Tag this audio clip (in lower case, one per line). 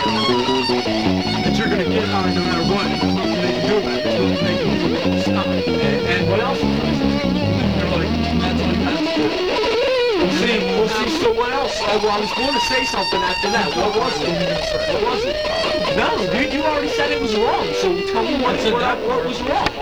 human voice